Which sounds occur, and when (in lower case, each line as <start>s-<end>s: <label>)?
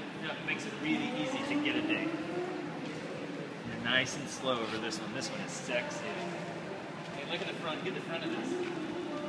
0.0s-9.2s: background noise
0.0s-9.2s: music
0.1s-2.1s: man speaking
3.7s-6.2s: man speaking
7.0s-8.7s: man speaking